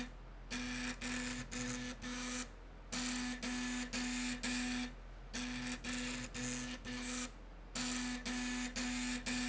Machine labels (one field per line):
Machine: slide rail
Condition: abnormal